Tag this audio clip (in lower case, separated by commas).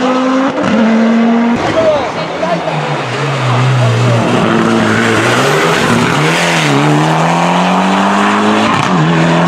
speech, auto racing